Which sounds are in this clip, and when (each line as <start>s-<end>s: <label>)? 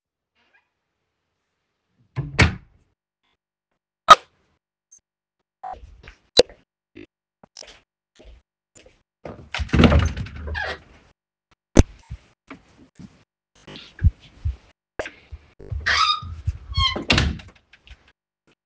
2.1s-2.7s: door
7.6s-9.3s: footsteps
15.6s-17.5s: wardrobe or drawer